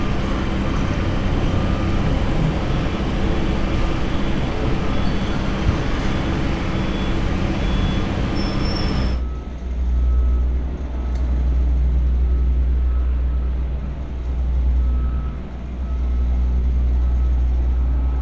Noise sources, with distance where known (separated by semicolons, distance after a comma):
engine of unclear size; unidentified alert signal